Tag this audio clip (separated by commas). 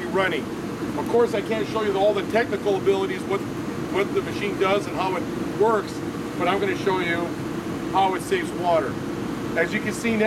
Speech